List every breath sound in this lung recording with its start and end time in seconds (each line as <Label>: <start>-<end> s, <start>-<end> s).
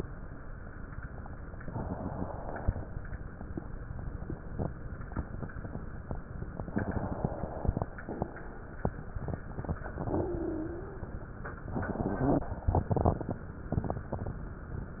Inhalation: 1.60-3.02 s, 6.68-7.88 s, 11.68-13.44 s
Exhalation: 10.00-11.20 s
Wheeze: 10.00-11.08 s